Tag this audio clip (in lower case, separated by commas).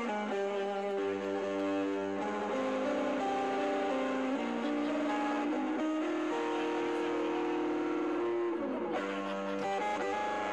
guitar, music, plucked string instrument, electric guitar, musical instrument